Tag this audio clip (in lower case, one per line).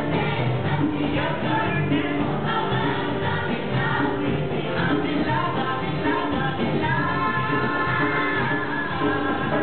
choir
music
singing